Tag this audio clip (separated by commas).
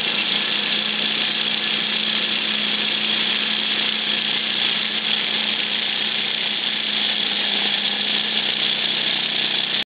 Engine